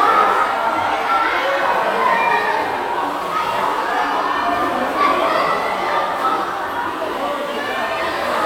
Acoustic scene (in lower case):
crowded indoor space